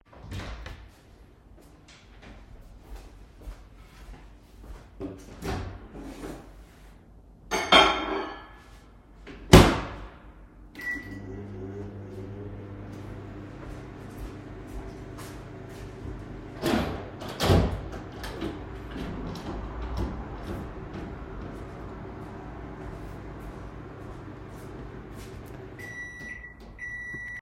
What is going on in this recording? I entered the kitchen, warmed the food in the microwave. I opened the kitchen window.